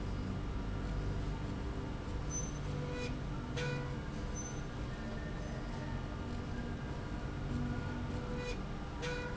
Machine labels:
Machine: slide rail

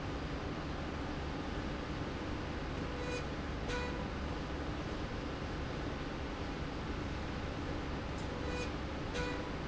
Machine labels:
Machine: slide rail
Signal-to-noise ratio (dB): -6 dB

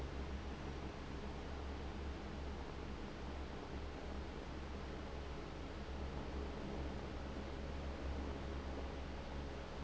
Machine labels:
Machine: fan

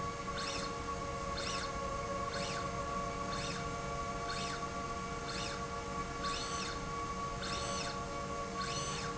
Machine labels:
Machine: slide rail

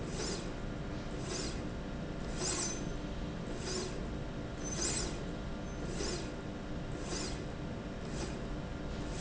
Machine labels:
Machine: slide rail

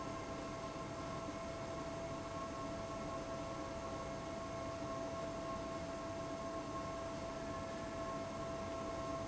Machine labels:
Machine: fan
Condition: abnormal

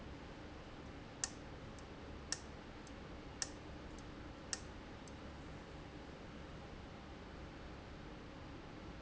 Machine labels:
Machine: valve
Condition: abnormal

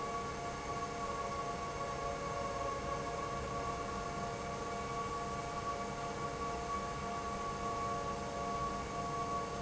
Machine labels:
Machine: pump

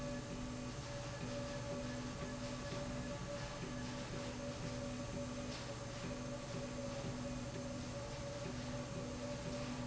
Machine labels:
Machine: slide rail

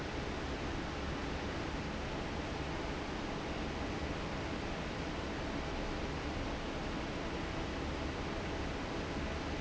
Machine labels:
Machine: fan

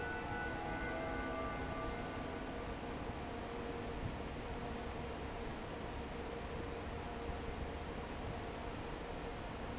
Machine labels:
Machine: fan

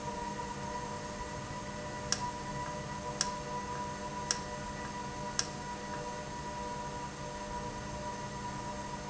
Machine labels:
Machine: valve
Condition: normal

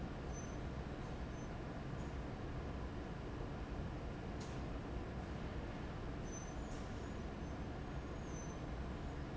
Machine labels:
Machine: fan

